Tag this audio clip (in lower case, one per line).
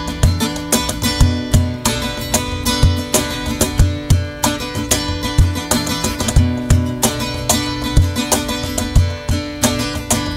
music